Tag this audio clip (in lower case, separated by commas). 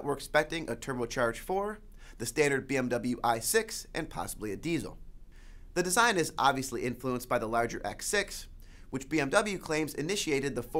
speech